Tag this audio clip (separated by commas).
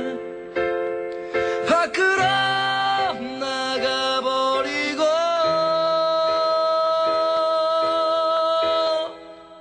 Music, inside a small room, Singing